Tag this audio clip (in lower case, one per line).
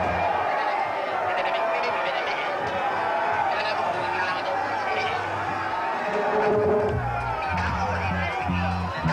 music